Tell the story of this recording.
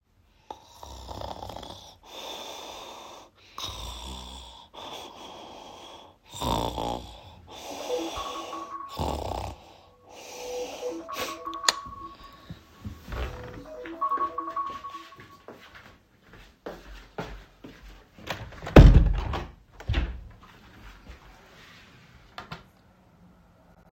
I stood at the cabinet and opened a drawer to search for my keys, rattling the keychain while looking.